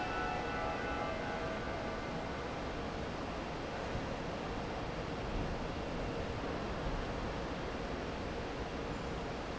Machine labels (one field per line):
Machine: fan